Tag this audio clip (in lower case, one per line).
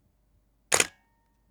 mechanisms
camera